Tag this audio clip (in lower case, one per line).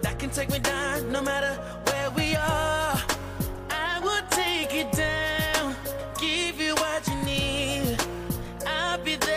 music